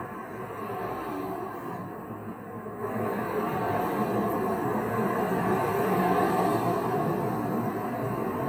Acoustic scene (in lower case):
street